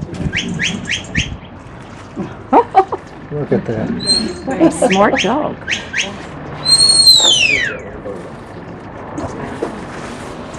A woman laughing then talking as man is speaking while another man and woman speak in the background as a bird sharply chirps along with wind blowing in the microphone proceeded by footsteps walking on gravel vehicles passing by